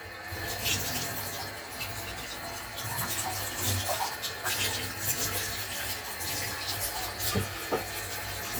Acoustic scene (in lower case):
kitchen